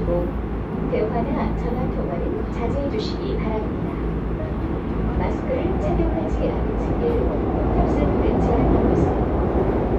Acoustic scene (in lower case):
subway train